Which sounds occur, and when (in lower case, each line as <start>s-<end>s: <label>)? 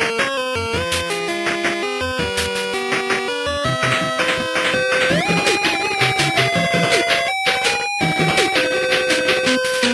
0.0s-9.9s: music
0.0s-9.9s: video game sound